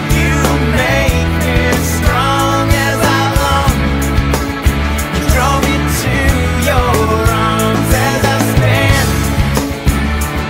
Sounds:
Independent music, Music

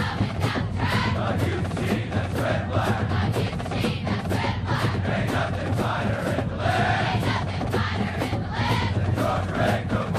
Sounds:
Music

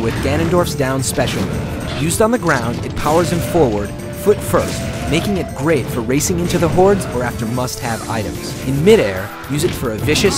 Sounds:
crash

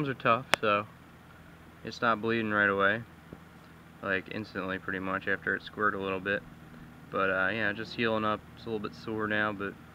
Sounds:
Speech

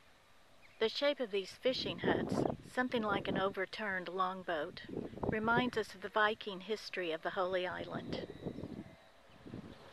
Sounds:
Speech, outside, rural or natural

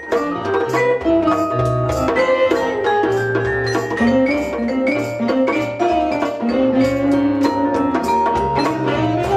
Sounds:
playing vibraphone

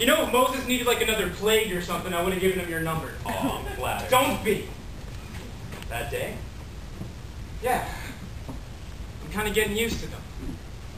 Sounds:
Speech

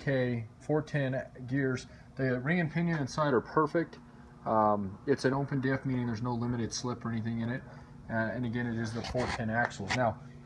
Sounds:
Speech

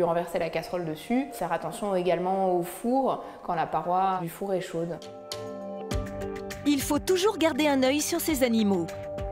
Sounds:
Speech, Music

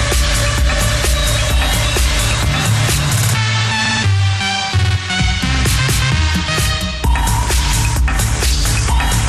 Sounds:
Music

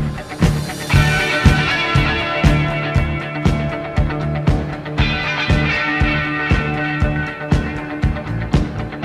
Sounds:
Music

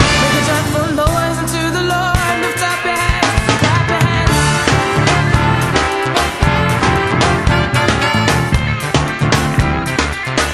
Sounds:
Independent music, Music

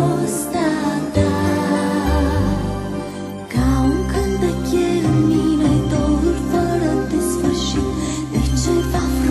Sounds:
Christmas music, Christian music, Music

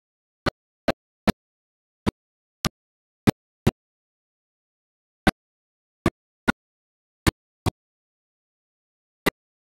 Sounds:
Music

